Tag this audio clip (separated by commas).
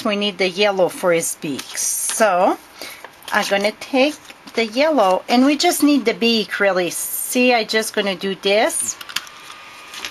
Speech